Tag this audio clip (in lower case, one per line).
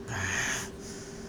breathing
respiratory sounds